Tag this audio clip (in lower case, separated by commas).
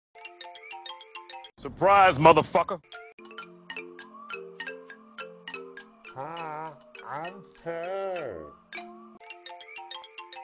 speech, music